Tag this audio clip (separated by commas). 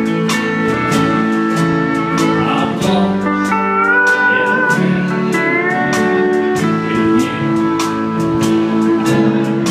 slide guitar, Music